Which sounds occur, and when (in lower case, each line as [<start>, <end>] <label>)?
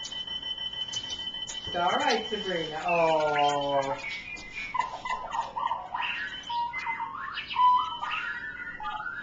[0.00, 0.31] dog
[0.00, 9.22] alarm clock
[0.00, 9.22] mechanisms
[0.88, 1.21] dog
[1.43, 1.70] dog
[1.66, 3.99] male speech
[1.95, 2.15] dog
[2.86, 3.58] dog
[3.79, 5.14] dog
[7.31, 7.59] bird call